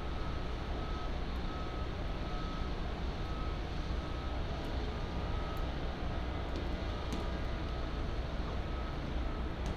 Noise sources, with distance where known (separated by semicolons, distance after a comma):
unidentified alert signal, far